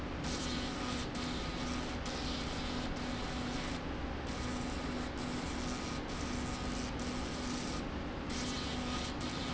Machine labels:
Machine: slide rail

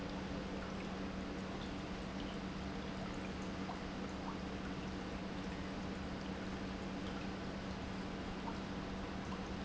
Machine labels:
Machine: pump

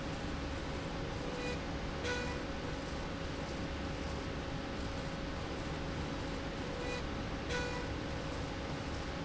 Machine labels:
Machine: slide rail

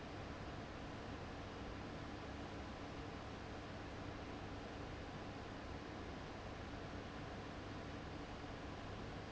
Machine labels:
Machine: fan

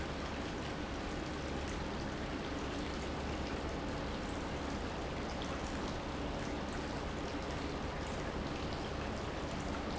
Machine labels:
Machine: pump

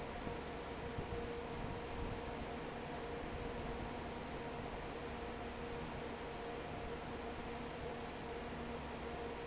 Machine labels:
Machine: fan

